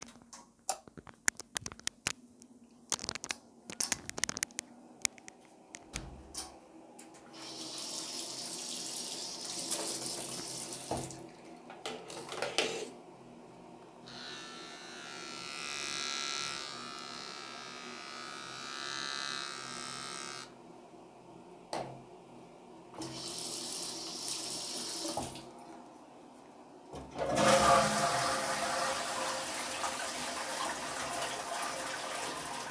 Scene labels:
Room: bathroom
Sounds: light switch, door, running water, toilet flushing

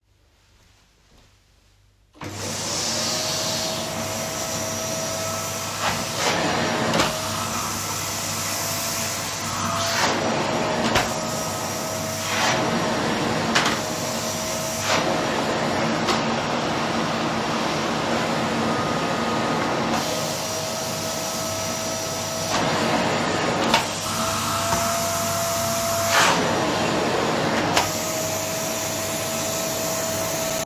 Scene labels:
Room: hallway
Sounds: vacuum cleaner

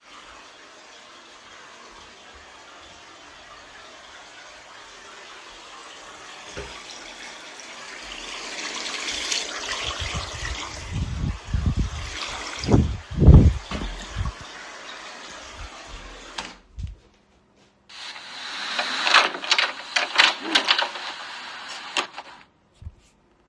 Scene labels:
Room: kitchen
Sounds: running water, door

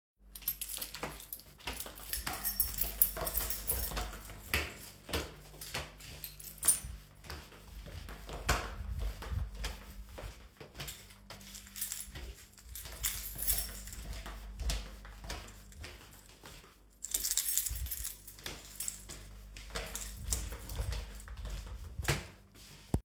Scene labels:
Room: hallway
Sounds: footsteps, keys

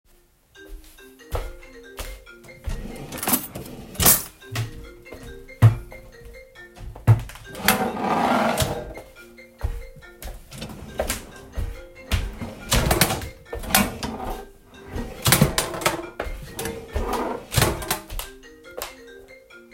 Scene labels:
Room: bedroom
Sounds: phone ringing, footsteps, wardrobe or drawer (more than once)

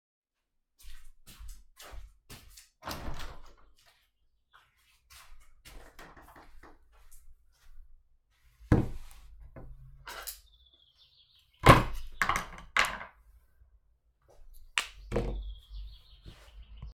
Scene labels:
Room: living room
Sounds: footsteps, door (more than once), cutlery and dishes

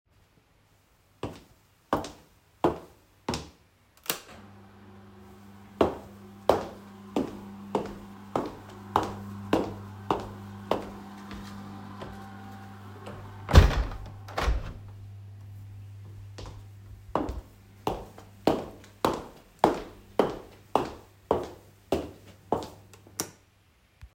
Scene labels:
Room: living room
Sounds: footsteps, window, light switch

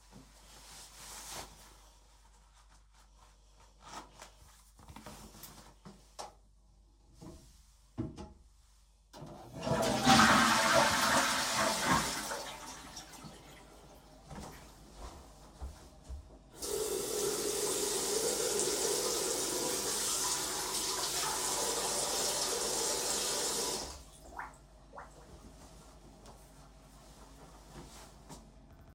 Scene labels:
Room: bathroom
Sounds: toilet flushing, footsteps, running water

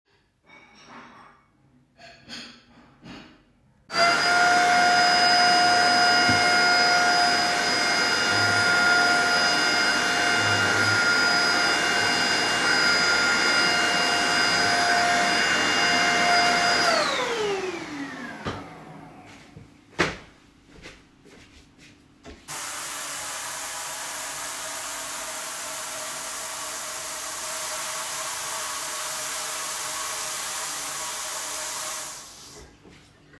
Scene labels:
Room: kitchen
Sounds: cutlery and dishes, vacuum cleaner, footsteps, running water

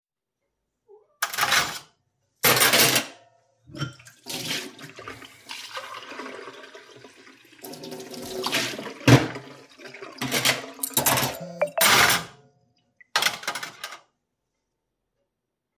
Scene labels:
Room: kitchen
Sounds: cutlery and dishes, running water, phone ringing

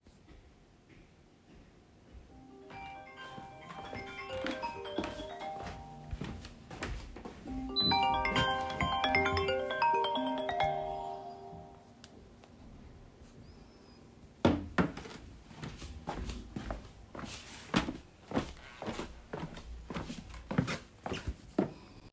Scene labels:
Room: hallway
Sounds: phone ringing, footsteps

